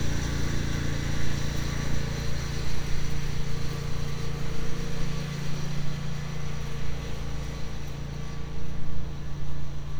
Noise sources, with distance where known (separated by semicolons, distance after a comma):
large-sounding engine, near